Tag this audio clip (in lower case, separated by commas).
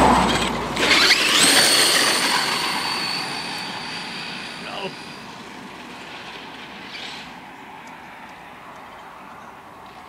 speech